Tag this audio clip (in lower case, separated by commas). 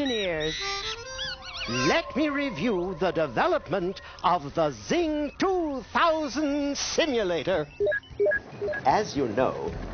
music, speech